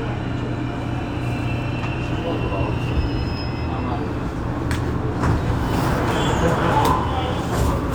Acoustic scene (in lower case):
subway train